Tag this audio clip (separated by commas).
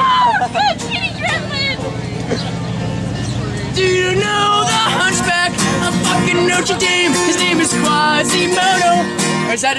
Speech, Plucked string instrument, Music, Guitar, Musical instrument, Acoustic guitar